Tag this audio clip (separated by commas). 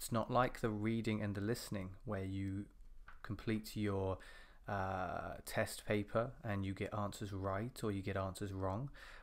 Speech